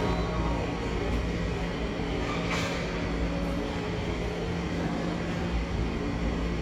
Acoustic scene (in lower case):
subway station